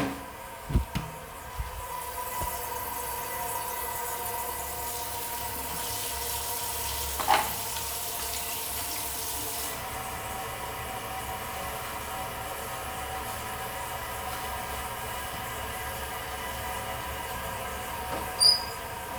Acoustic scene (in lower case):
restroom